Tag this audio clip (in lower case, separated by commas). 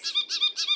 wild animals, animal, squeak, bird